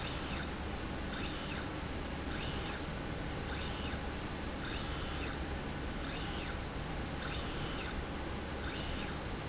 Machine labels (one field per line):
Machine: slide rail